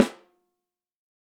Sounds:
musical instrument
drum
music
percussion
snare drum

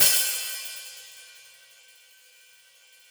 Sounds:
cymbal
hi-hat
percussion
music
musical instrument

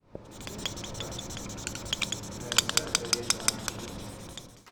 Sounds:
home sounds
writing

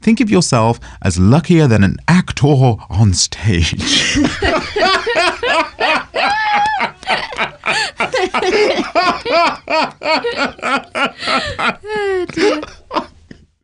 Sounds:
human voice
laughter

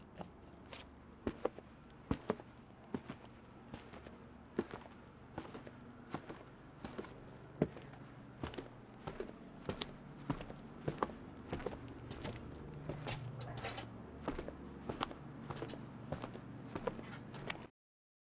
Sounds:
footsteps

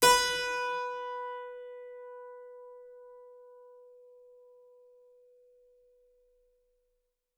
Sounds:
music
musical instrument
keyboard (musical)

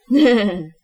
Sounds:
laughter
human voice

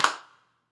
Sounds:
clapping
hands

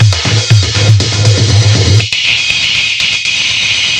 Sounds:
percussion
music
musical instrument
drum kit

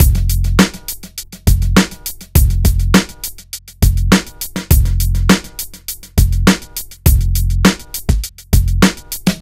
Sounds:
drum
drum kit
percussion
musical instrument
music

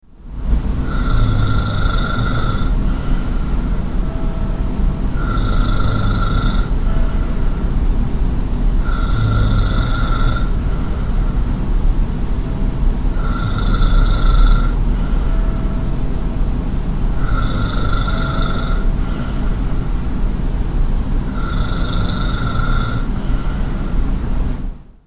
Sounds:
bell
church bell

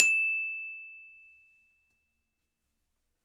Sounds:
music
glockenspiel
percussion
mallet percussion
musical instrument

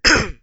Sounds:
respiratory sounds
cough

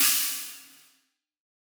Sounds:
percussion
musical instrument
cymbal
hi-hat
music

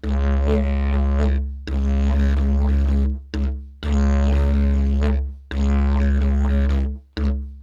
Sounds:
music
musical instrument

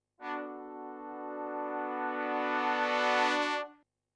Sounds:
musical instrument
keyboard (musical)
music
brass instrument

